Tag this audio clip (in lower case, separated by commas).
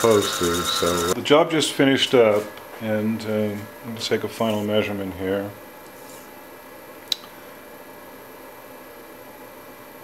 speech, tools